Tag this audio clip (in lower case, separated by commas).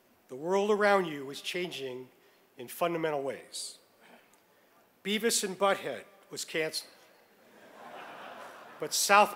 speech, male speech